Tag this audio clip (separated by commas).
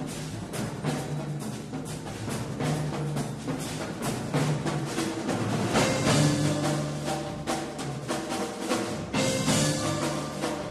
Wood block, Musical instrument, Music, Drum kit, Drum